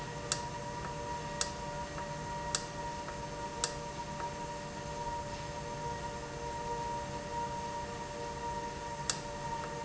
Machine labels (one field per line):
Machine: valve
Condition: normal